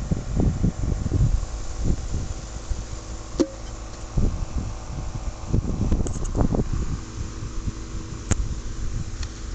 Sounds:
outside, rural or natural

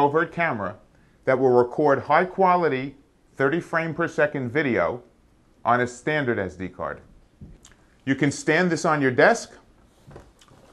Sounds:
speech

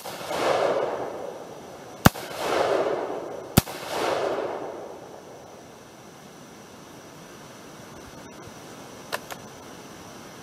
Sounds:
outside, rural or natural

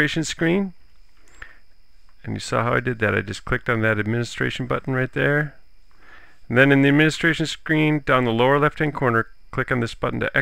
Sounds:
speech

